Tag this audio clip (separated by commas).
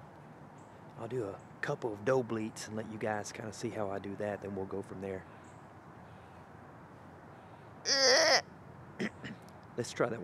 Speech